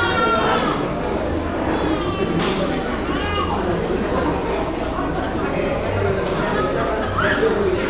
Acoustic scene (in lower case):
cafe